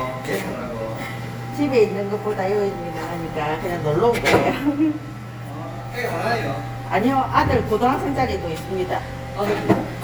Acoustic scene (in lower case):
cafe